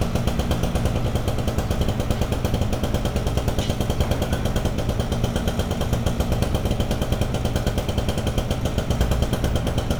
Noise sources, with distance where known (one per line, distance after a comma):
engine of unclear size, near